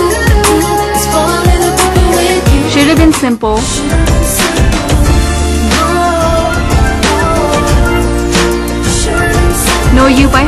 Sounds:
Speech, Music

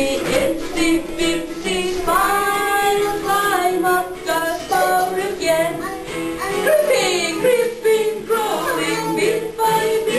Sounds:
Female singing, Child singing, Music

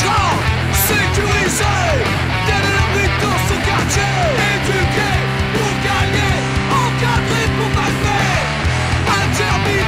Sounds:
Music

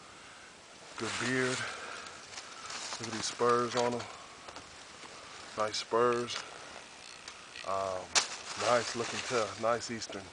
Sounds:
Speech

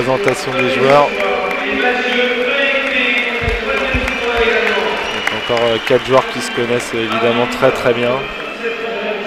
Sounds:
Speech

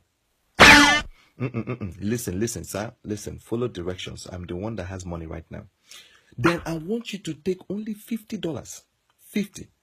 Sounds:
Speech, Music

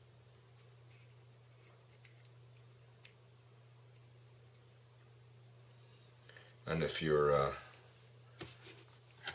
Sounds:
Speech

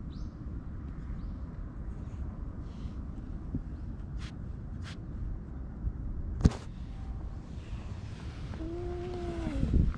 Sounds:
cat hissing

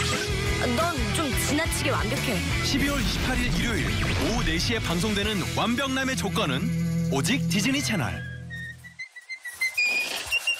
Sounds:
Whistling

